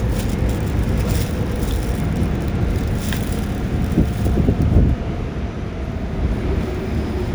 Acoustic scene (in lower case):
subway train